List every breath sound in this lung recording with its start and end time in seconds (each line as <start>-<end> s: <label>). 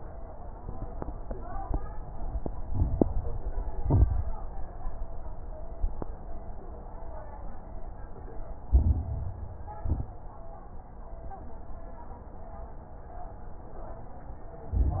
2.64-3.75 s: crackles
2.64-3.76 s: inhalation
3.78-4.32 s: exhalation
3.78-4.32 s: crackles
8.68-9.79 s: crackles
8.68-9.80 s: inhalation
9.80-10.19 s: exhalation
9.80-10.21 s: crackles
14.71-15.00 s: crackles
14.73-15.00 s: inhalation